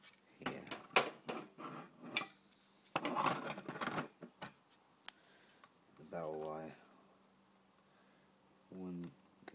Clinking and clattering with light male speech